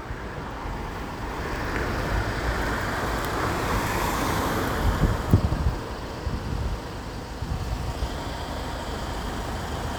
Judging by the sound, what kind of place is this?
street